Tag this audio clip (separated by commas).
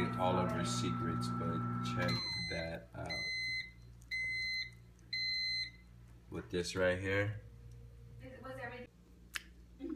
Speech